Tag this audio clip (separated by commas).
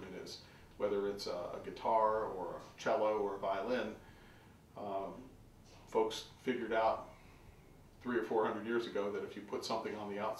Speech